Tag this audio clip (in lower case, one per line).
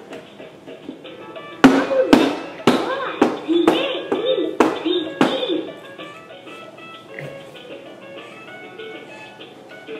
music
speech